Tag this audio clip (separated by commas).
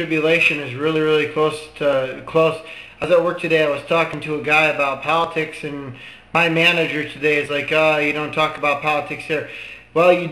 Speech, Male speech, monologue